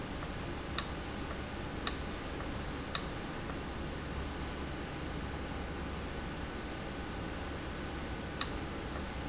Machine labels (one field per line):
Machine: valve